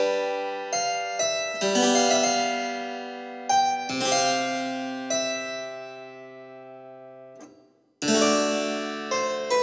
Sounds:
speech
music

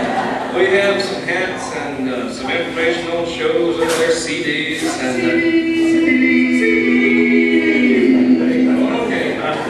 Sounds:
speech

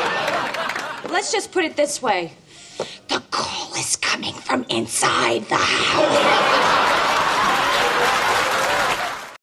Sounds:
speech

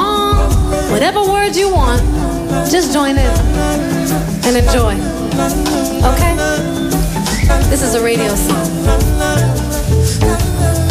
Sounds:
music
speech

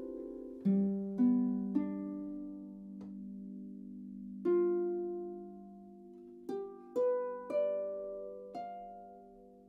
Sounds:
playing harp

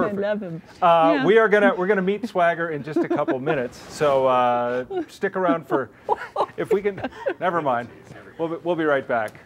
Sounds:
speech

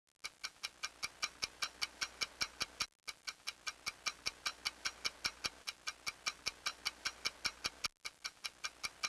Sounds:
tick-tock

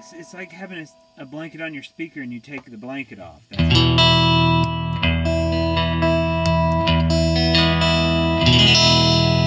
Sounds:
distortion
effects unit
guitar
music
reverberation
speech

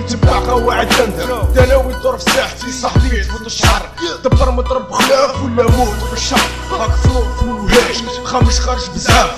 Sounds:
hip hop music
rapping
music

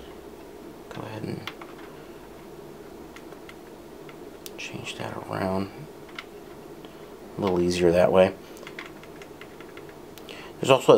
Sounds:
speech

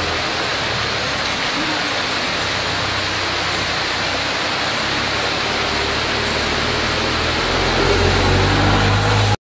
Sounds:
rain on surface

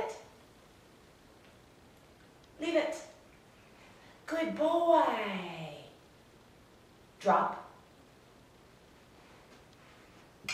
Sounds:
speech

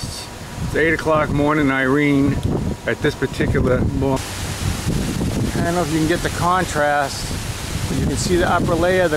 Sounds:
wind noise (microphone)
wind

